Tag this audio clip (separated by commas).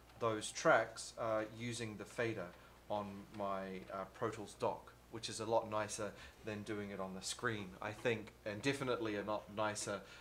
Speech